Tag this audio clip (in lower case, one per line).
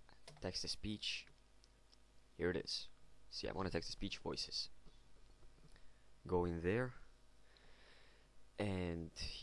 speech